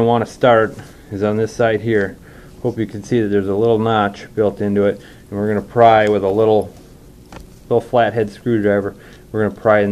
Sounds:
speech

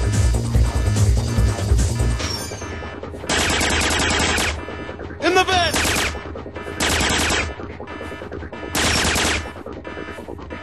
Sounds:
sound effect

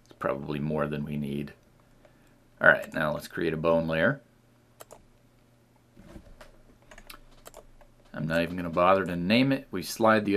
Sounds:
computer keyboard, speech

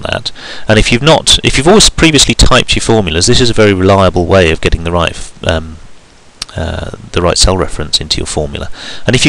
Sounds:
speech

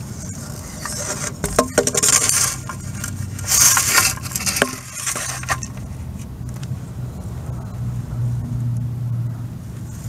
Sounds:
outside, rural or natural

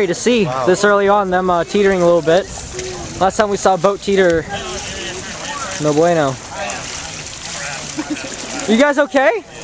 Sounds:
water vehicle, vehicle, speech

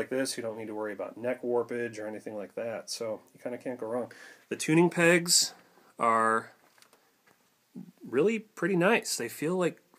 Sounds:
speech

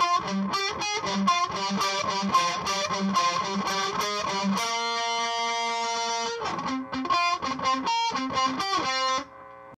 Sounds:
music, musical instrument, plucked string instrument, acoustic guitar, guitar, strum

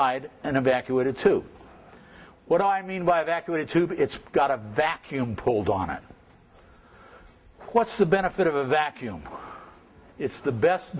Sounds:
speech

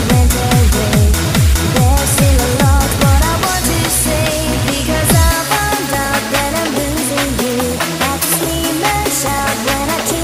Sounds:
trance music, electronic music, music

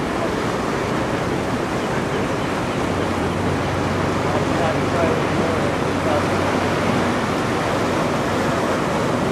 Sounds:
wind

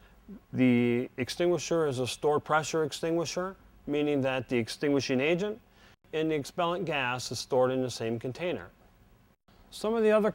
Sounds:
speech

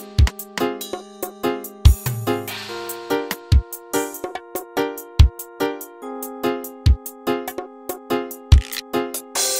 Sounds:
music

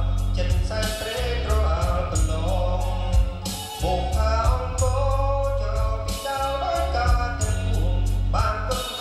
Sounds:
music, musical instrument

